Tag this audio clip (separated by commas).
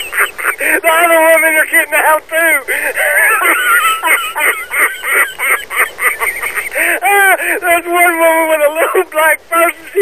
Speech